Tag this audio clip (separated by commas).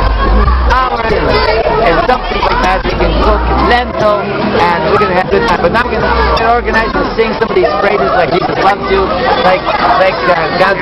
Speech